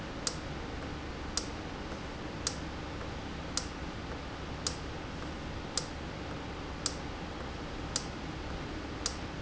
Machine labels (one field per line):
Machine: valve